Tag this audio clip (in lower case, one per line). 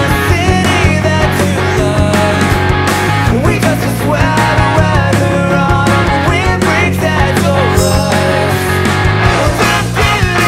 music
strum
musical instrument
guitar
plucked string instrument